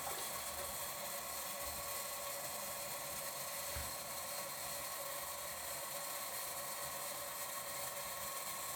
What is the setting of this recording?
restroom